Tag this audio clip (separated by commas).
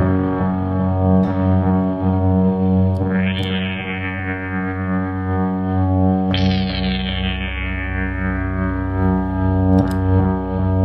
Effects unit, Music, Musical instrument